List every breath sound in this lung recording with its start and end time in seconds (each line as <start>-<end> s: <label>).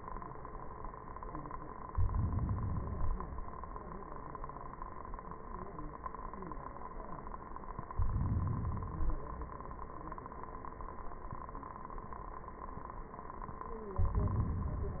1.90-2.96 s: inhalation
7.95-8.92 s: inhalation